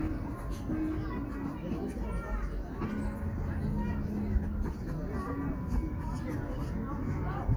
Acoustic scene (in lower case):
park